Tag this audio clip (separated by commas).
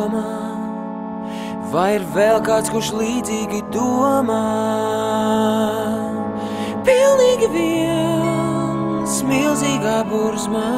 Music